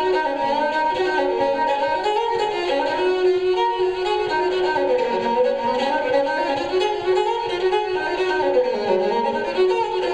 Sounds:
fiddle, musical instrument, music

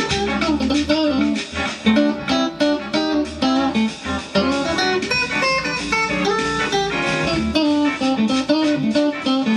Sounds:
music, musical instrument, electric guitar, guitar, blues, plucked string instrument

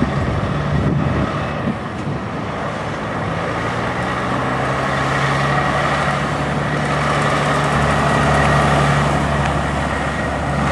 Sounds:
truck, vehicle

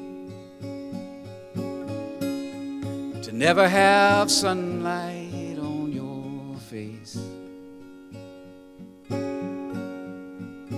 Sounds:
acoustic guitar, music

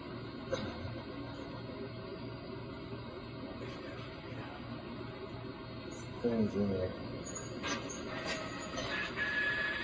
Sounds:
printer, speech

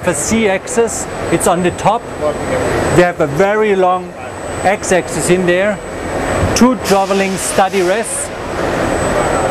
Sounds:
tools, speech

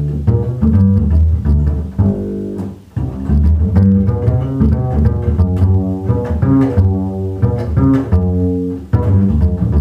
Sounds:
playing double bass, bowed string instrument, double bass, pizzicato

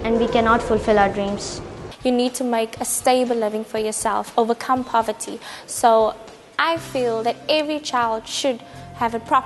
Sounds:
music, speech

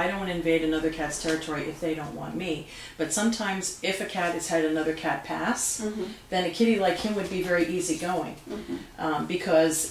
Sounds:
speech

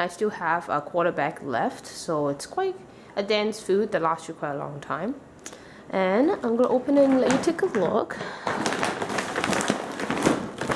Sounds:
speech

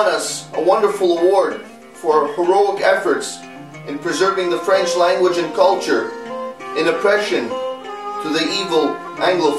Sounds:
speech, music, man speaking

